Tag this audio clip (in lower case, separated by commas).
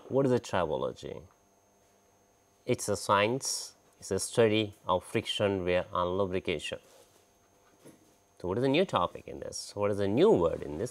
speech